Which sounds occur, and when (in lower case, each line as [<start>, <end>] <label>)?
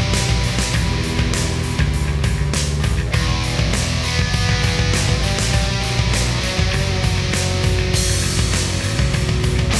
[0.00, 9.75] music